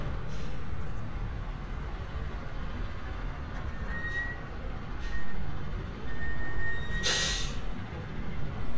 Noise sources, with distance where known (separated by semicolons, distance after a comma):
large-sounding engine, near